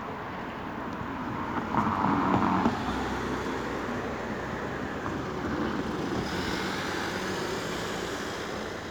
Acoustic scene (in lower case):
street